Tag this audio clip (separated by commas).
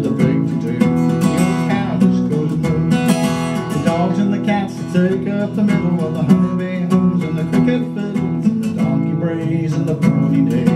Music, Musical instrument